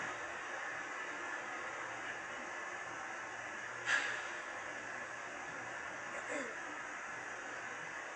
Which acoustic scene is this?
subway train